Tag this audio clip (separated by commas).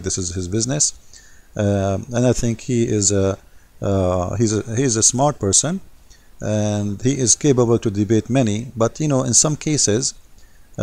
Speech